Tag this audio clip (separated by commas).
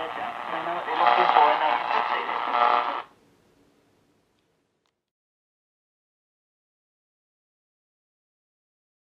inside a small room, Radio, Silence, Speech